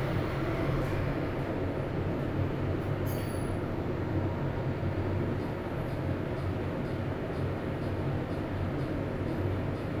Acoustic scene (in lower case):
elevator